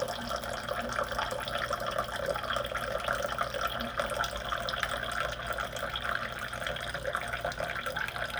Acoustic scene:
kitchen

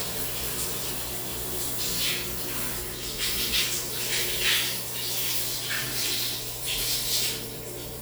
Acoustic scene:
restroom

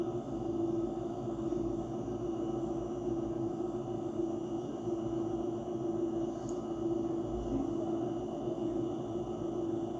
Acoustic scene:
bus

